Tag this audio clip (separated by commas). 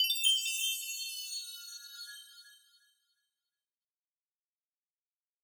Chime, Bell